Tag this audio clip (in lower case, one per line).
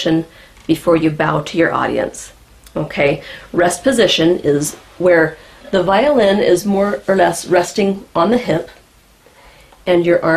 speech